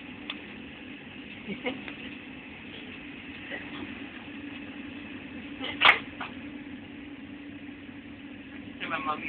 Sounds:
Speech

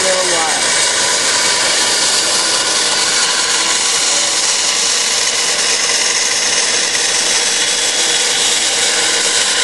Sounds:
Wood, Sawing

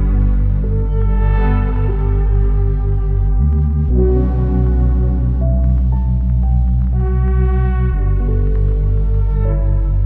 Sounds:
Music, Ambient music

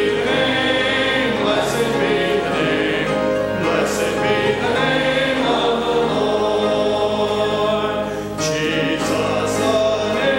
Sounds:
Music, Choir, Male singing

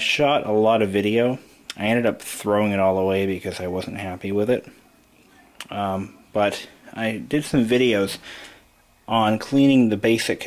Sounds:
Speech

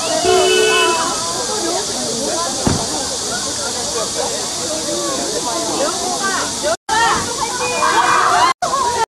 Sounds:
Speech

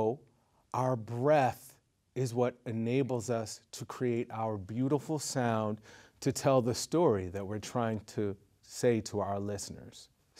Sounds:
Speech

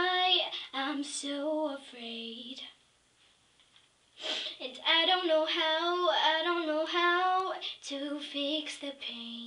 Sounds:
Child singing

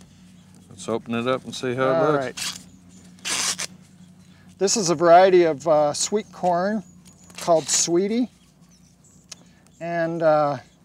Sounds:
Speech, outside, rural or natural

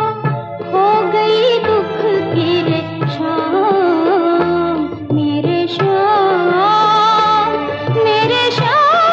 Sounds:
Music of Bollywood, Music

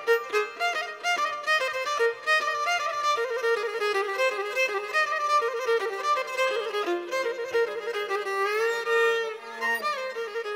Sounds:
Bowed string instrument

